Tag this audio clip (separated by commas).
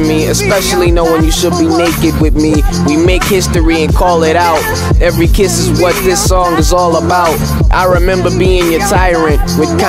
Music, Musical instrument